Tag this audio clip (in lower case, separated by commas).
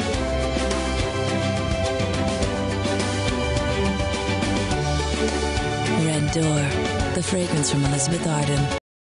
speech, music